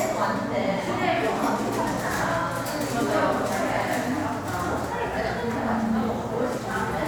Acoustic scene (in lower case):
cafe